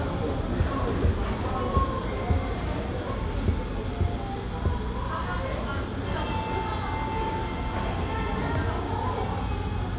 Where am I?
in a cafe